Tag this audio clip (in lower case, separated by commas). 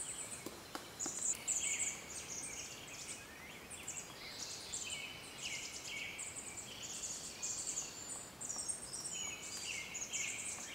woodpecker pecking tree